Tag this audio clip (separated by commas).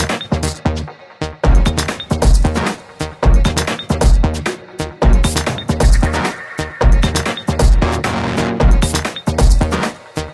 Music, Dubstep